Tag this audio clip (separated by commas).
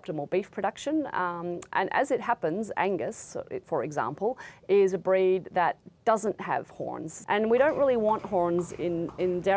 Speech